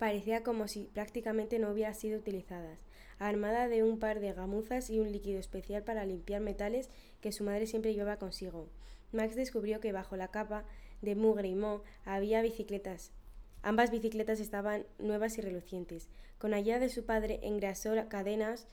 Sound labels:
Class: speech